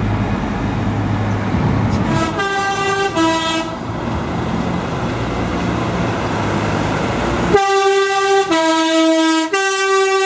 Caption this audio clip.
Vehicle drives and honks its horn